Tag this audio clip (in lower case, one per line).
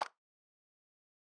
clapping
hands